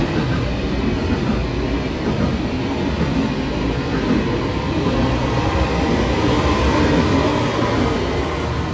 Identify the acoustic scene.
subway station